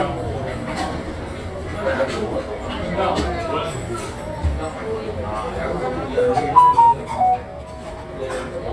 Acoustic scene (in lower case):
restaurant